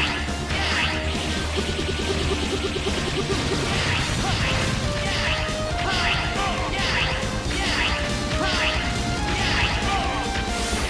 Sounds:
Music

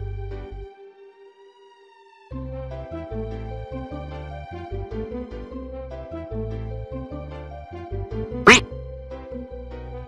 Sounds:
Music

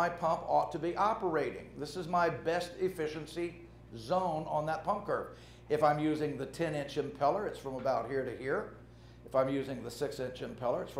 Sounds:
Speech

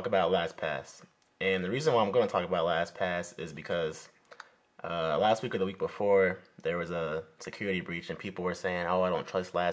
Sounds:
Speech

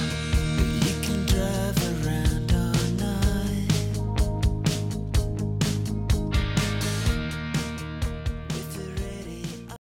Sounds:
Music

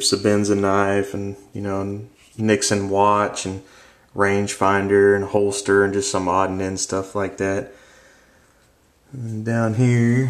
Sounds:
Speech

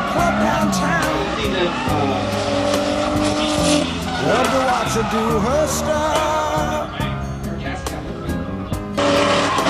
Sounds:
auto racing, Speech, Skidding, Vehicle, Music

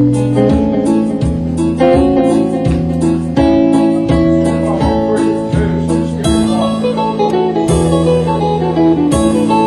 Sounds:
Music

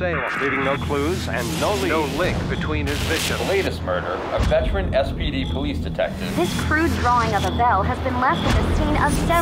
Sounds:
Music, Speech

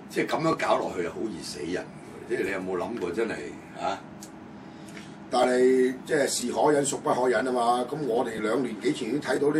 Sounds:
Speech

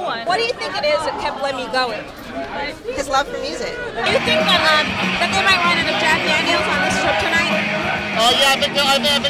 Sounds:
Speech, Music

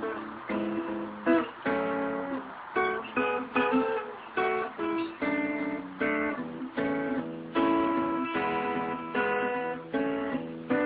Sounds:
Guitar, Music, Plucked string instrument, Musical instrument, Strum

